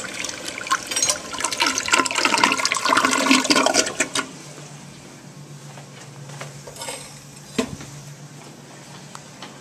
Water drains from a toilet